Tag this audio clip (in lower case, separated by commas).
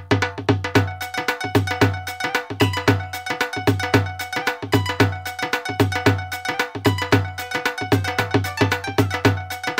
music